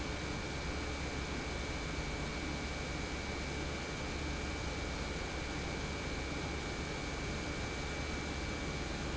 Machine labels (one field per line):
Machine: pump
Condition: normal